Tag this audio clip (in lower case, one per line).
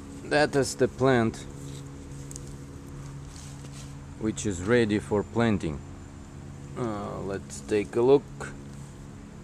speech